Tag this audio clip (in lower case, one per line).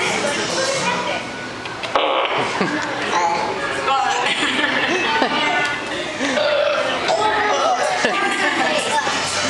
speech
children playing